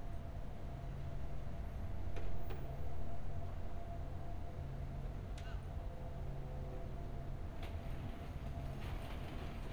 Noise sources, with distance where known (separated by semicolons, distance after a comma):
background noise